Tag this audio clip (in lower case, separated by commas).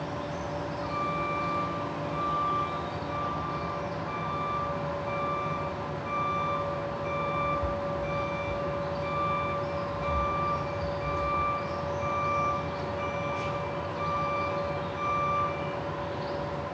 motor vehicle (road), truck, vehicle